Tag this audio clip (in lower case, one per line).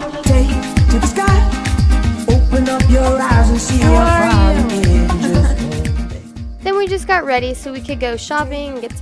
afrobeat
music
speech